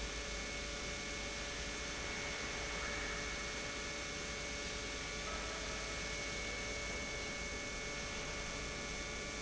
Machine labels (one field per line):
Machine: pump